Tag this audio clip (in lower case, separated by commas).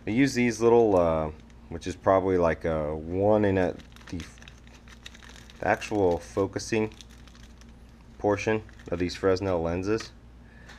speech